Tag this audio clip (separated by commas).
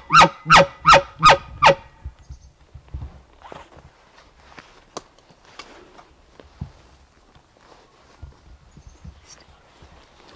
elk bugling